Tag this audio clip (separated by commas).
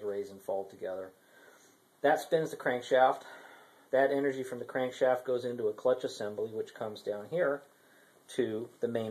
Speech